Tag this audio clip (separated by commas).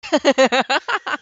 Human voice, Laughter